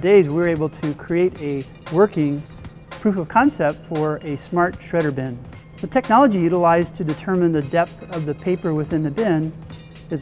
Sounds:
Speech, Music

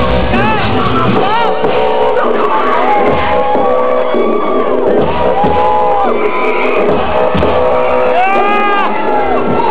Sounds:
Music, Speech

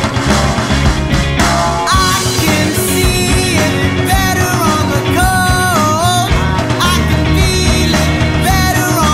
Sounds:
Music

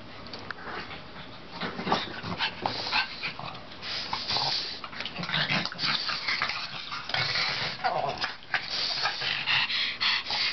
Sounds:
Dog, Yip, Bow-wow, Domestic animals, Animal

